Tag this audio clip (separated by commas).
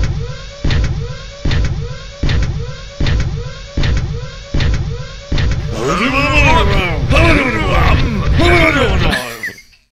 Speech